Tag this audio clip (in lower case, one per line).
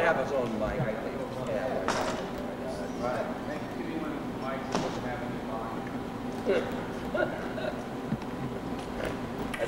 speech